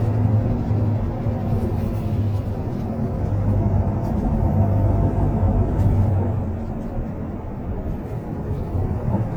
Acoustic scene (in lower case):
bus